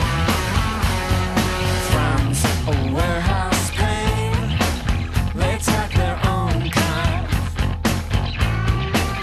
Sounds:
Music, Rhythm and blues

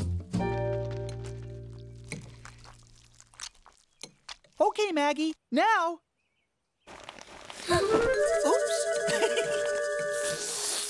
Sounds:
Music, Speech

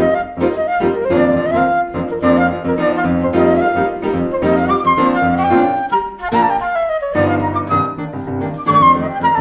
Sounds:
Music, Flute, playing flute

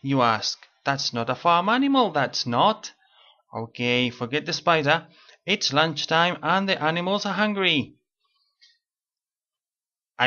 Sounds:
Speech

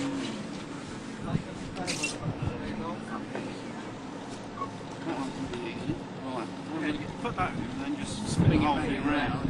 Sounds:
Speech

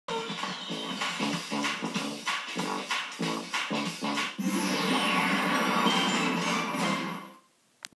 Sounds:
Music, Television

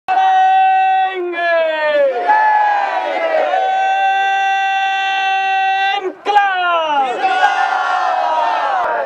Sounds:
Speech, outside, rural or natural

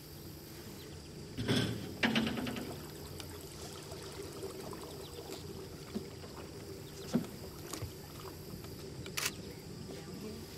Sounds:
canoe

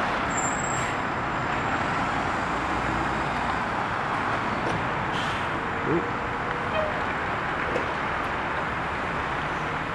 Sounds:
Truck, Vehicle

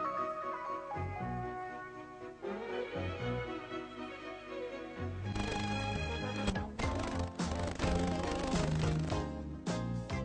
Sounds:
Television, Music, Jingle (music)

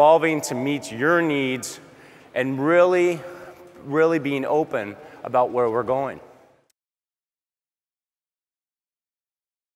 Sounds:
Speech

